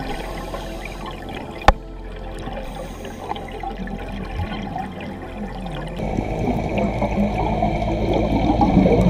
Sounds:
scuba diving

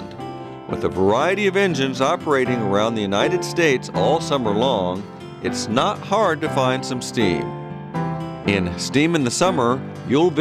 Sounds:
music, speech

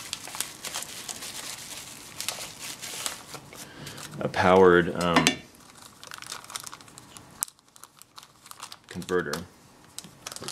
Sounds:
speech

